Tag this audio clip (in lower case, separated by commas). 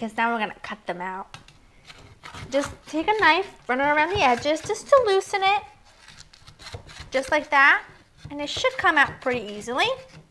inside a small room, speech